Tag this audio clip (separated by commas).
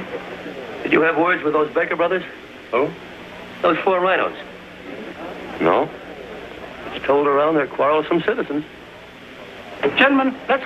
Speech